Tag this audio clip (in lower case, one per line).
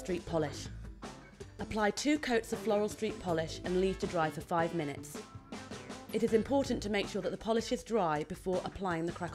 speech
music